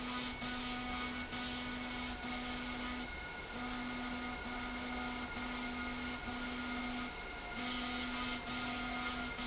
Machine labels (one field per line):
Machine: slide rail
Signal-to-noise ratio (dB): 0 dB